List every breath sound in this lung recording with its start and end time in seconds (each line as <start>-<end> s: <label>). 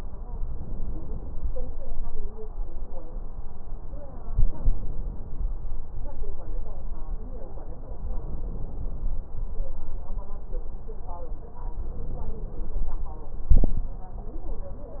0.31-1.58 s: inhalation
4.28-5.57 s: inhalation
8.01-9.30 s: inhalation
11.73-13.03 s: inhalation